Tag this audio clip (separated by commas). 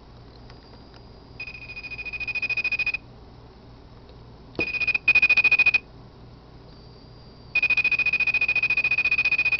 Speech